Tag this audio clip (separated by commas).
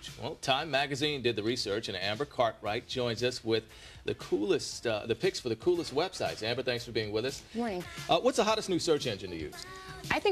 Speech, Music